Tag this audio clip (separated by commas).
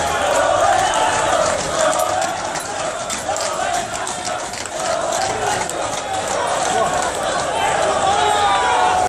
Speech